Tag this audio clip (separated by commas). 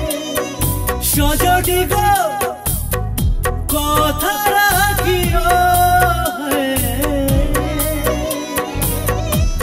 Sad music, Music